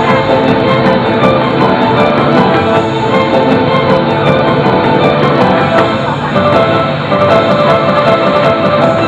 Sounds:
Music

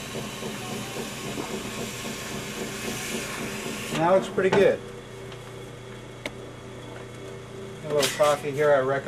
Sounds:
Speech

